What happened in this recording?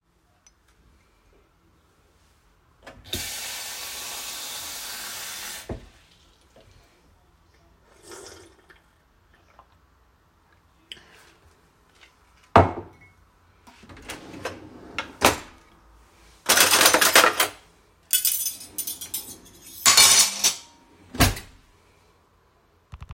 I grabbed a cup, turned on the tap, and filled it with water. I took a drink and then opened a drawer to get a spoon and fork. I placed the cutlery on my plate and closed the drawer.